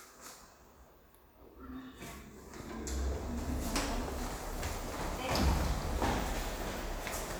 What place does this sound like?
elevator